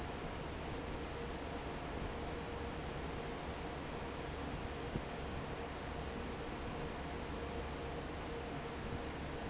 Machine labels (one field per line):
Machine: fan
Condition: normal